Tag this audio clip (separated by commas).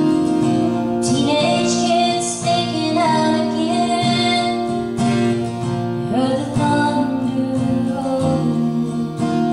Country, Music